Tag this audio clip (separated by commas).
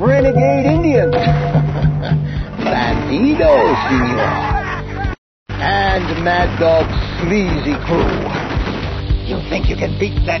Music, Speech